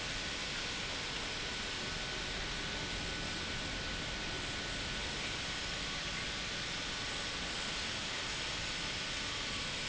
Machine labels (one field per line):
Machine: pump